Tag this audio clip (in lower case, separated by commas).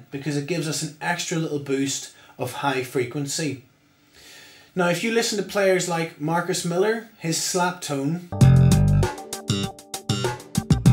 music, speech, jazz, male speech